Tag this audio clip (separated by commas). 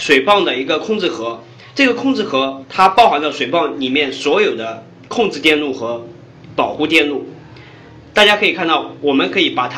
Speech